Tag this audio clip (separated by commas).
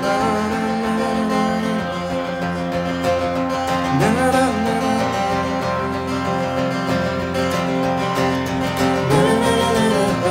Music